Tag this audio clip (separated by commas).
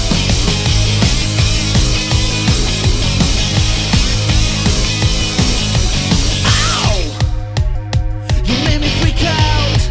Music